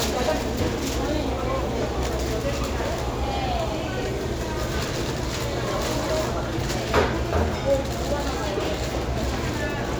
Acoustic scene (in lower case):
crowded indoor space